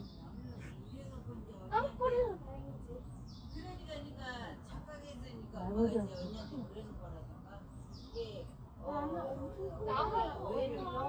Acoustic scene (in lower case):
park